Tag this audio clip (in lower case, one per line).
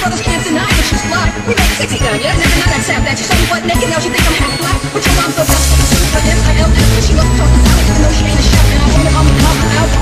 music